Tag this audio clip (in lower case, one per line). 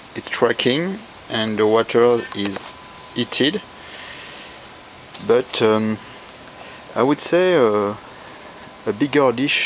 speech